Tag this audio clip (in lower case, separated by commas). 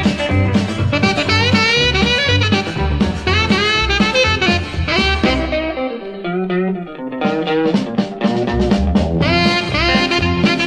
brass instrument, saxophone